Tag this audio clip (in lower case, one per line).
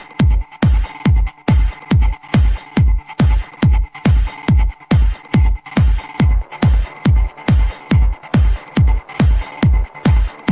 music